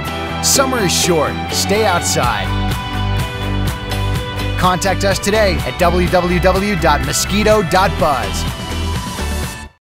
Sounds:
Music, Speech

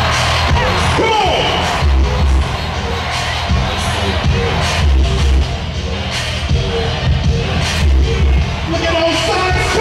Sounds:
Speech, Music, Crowd

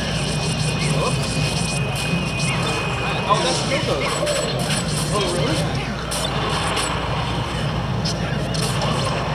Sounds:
Music, Speech

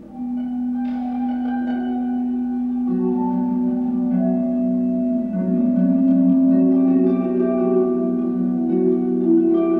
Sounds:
Double bass, Music, Musical instrument

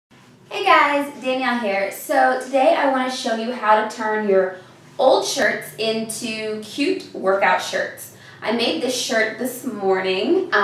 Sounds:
Speech

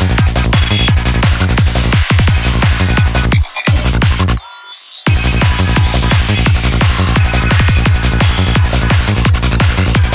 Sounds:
Music, Electronic music

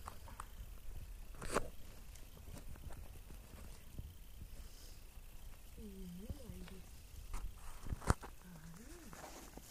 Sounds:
Speech

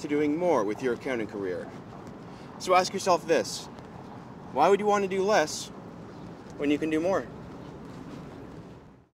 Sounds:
footsteps, Speech

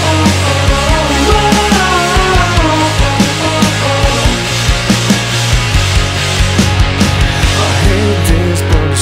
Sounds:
Music

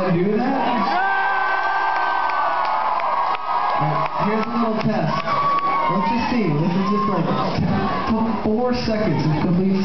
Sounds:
Speech

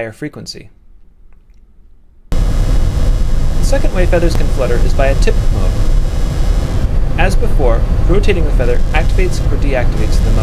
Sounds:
Speech

